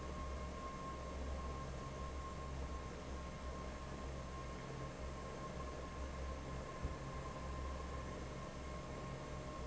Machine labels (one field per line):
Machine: fan